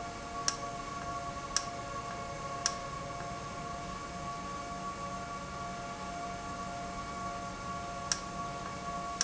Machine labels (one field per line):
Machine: valve